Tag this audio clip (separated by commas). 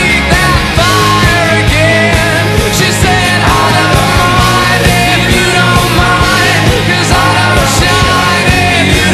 Music, Punk rock